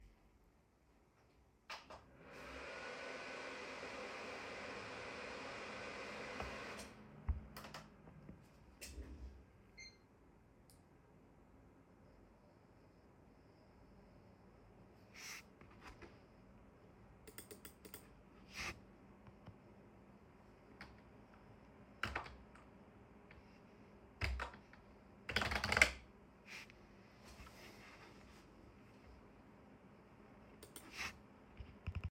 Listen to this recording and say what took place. I turne on my pc, monitor, headset, opened Visual Studio code and started typing